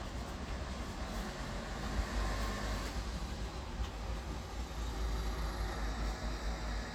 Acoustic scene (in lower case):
residential area